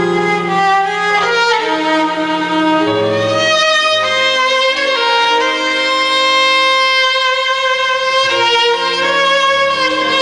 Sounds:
music, musical instrument, violin

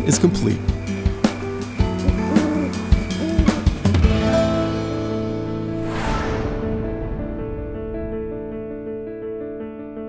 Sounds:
snare drum, rimshot, drum, drum kit, percussion, bass drum

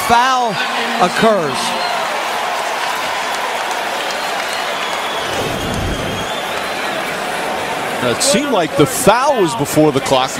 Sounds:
speech

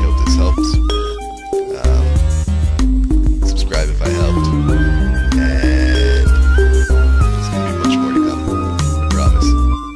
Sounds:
music of africa

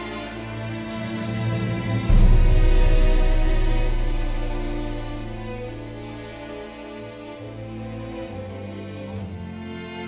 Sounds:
background music, music

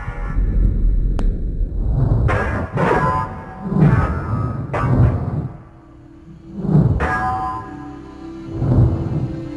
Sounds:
music

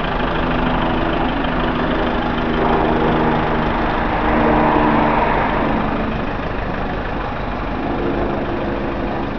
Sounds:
vehicle, outside, urban or man-made

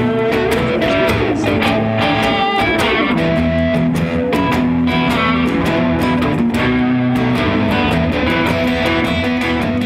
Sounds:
music, blues

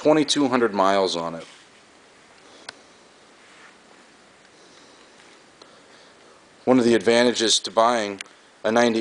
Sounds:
speech

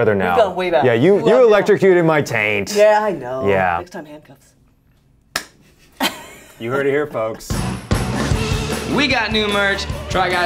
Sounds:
people finger snapping

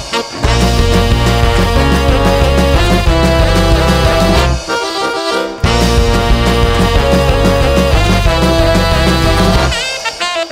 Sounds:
orchestra, ska, music

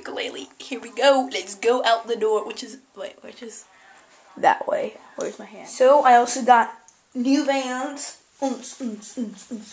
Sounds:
speech

